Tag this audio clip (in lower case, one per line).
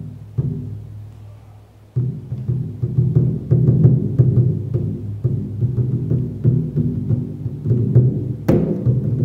music
drum